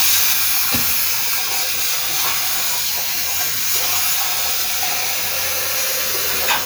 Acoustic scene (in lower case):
restroom